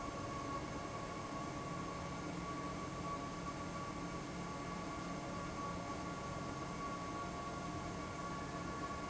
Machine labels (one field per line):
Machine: fan